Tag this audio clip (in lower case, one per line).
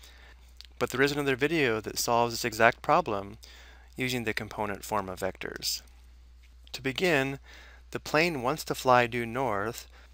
speech